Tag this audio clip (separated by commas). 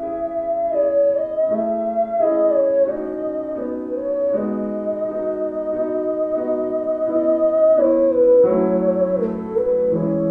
playing theremin